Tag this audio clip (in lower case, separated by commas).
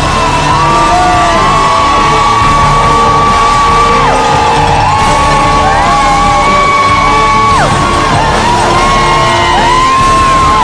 music, yell